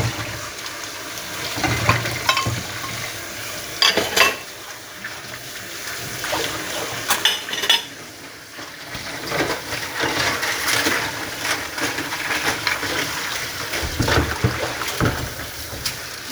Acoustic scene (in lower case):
kitchen